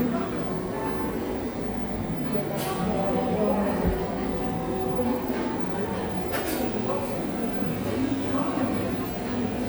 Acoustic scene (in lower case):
cafe